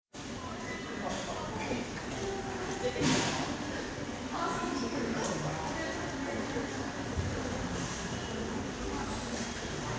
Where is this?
in a subway station